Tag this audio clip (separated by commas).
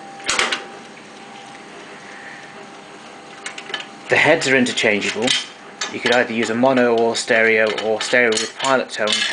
dishes, pots and pans